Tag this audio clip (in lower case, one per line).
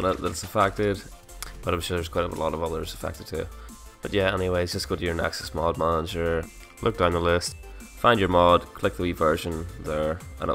speech
music